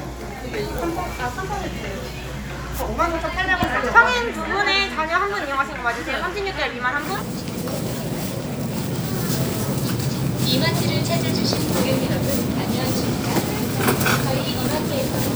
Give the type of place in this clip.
crowded indoor space